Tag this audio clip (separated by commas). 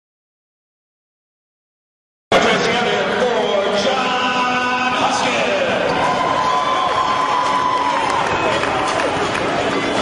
Music, Speech